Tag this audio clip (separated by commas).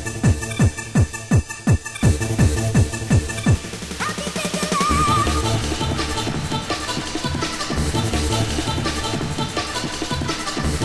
Music, Techno, Electronic music